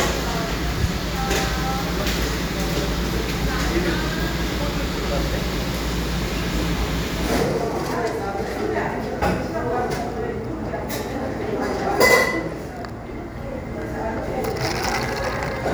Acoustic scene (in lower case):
cafe